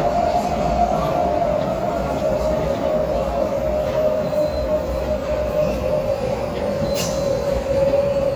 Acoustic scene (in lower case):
subway station